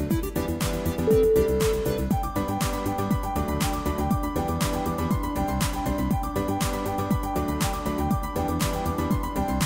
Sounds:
music

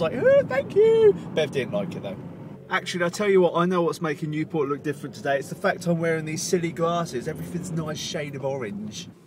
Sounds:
speech

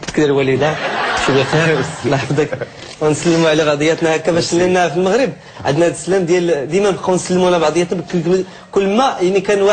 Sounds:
speech

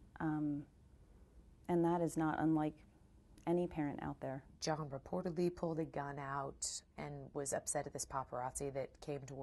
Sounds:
speech

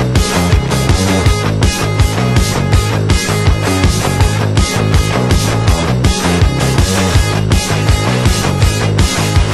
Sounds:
music

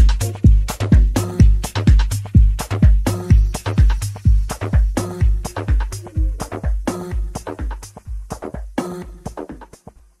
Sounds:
music

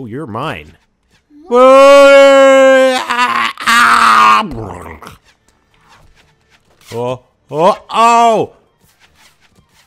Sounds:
groan, speech

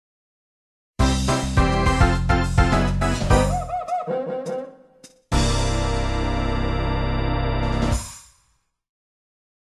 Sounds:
soundtrack music, music

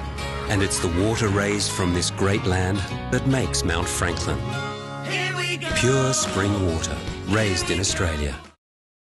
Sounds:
music, speech

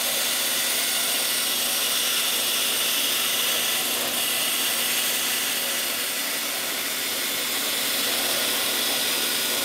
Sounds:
wood

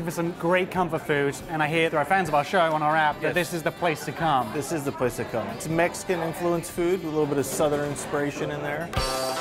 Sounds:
music, speech

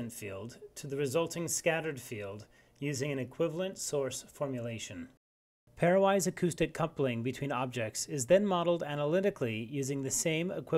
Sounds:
speech

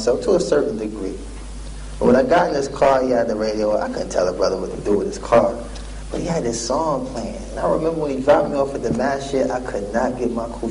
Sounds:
speech

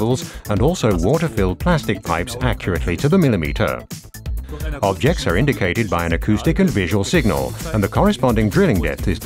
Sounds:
music, speech

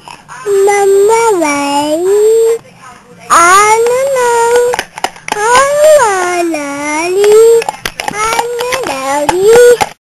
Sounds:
speech, child singing

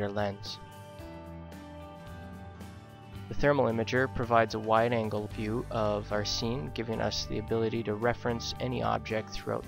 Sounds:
speech, music

